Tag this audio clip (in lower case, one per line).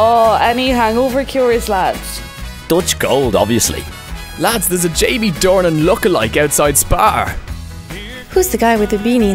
speech
music